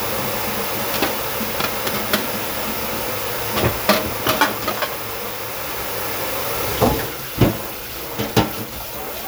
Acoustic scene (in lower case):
kitchen